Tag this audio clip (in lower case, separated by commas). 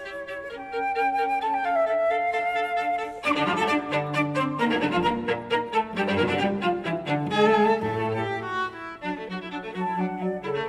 violin, musical instrument, music